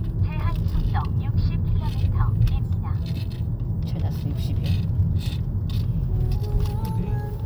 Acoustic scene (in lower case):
car